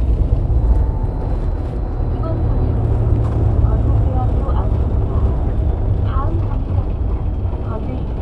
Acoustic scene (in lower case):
bus